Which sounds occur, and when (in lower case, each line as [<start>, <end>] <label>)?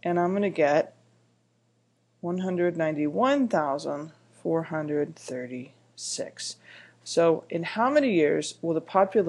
[0.00, 0.90] female speech
[0.00, 9.25] background noise
[2.17, 4.15] female speech
[4.34, 5.69] female speech
[5.94, 6.52] female speech
[6.57, 6.96] breathing
[7.02, 9.25] female speech